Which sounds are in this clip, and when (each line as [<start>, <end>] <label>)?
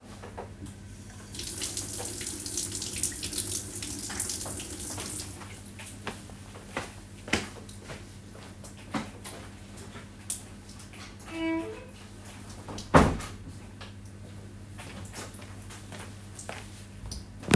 [1.15, 6.14] running water
[6.23, 17.56] footsteps
[11.19, 11.94] door
[12.69, 13.51] door